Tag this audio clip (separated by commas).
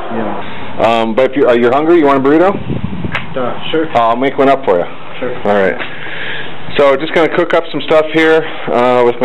Speech